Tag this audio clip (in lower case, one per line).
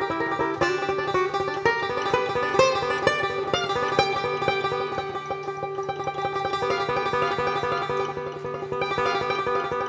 music
mandolin